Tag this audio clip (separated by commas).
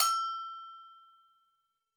Bell